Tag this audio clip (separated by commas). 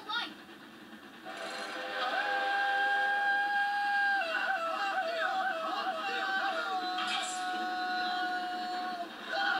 Train whistle